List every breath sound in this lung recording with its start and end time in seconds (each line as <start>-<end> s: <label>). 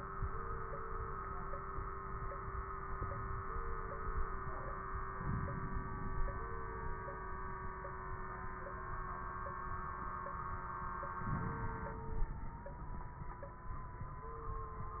5.12-6.20 s: inhalation
5.12-6.20 s: crackles
11.23-12.56 s: inhalation
11.23-12.56 s: crackles